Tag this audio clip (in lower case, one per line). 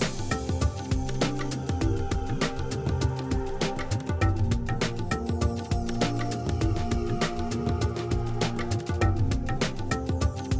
music